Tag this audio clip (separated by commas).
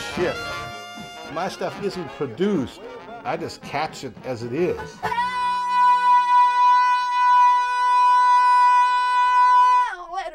Music, Speech